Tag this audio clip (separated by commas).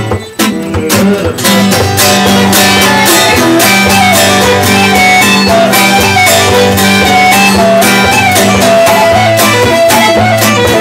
Plucked string instrument, Musical instrument, Music, Violin, Guitar